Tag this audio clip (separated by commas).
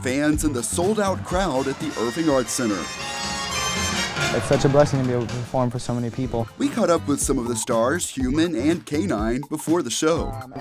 Speech, Music